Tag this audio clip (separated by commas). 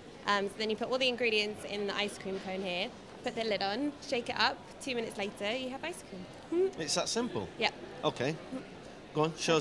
Speech